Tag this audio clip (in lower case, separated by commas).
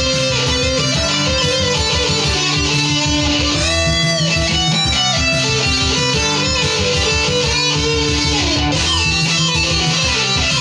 electric guitar, guitar, musical instrument, plucked string instrument, music